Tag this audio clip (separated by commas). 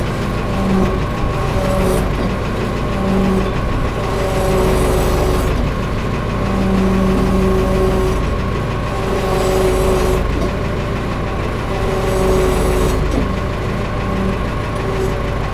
Engine